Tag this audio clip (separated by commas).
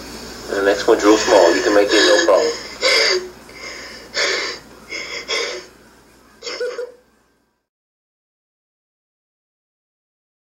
inside a small room, Speech